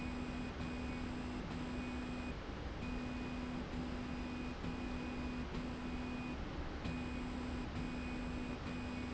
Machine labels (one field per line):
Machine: slide rail